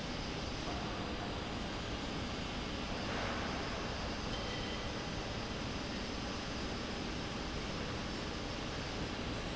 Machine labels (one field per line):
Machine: slide rail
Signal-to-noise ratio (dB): -6 dB